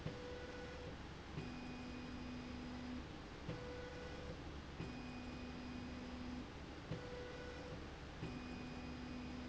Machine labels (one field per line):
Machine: slide rail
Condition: normal